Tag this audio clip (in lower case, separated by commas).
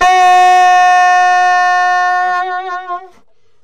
wind instrument, music, musical instrument